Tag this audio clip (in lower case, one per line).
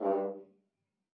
brass instrument
music
musical instrument